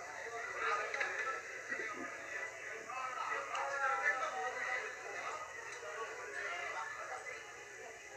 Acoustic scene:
restaurant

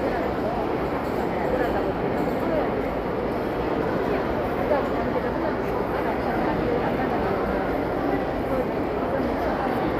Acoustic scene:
crowded indoor space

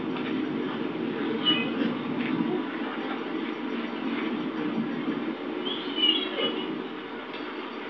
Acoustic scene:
park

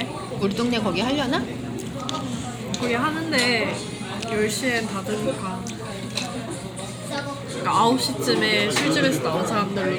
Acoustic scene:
crowded indoor space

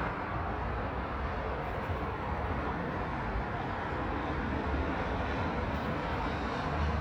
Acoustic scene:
street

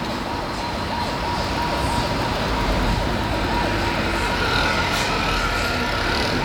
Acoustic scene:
street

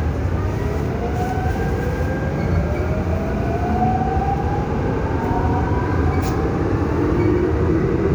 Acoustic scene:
subway train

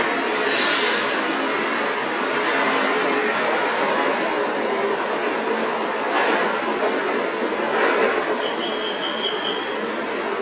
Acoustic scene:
street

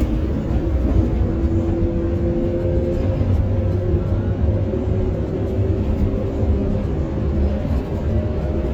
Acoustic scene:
bus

